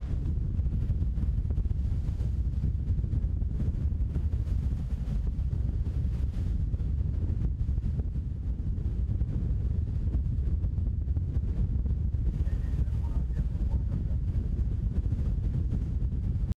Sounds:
Wind, Vehicle, Boat

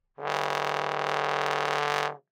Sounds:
Musical instrument, Music, Brass instrument

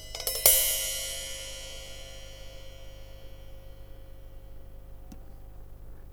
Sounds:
Tap

